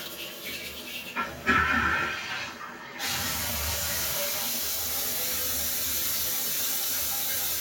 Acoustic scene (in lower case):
restroom